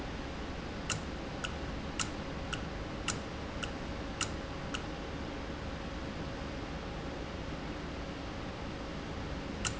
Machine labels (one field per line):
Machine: valve